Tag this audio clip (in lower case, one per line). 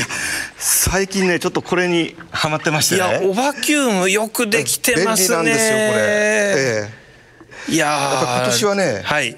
speech